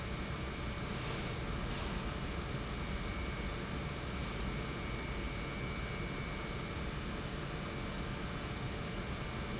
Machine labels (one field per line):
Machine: pump